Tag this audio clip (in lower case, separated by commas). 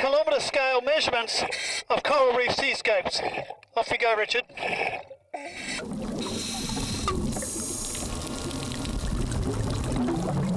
speech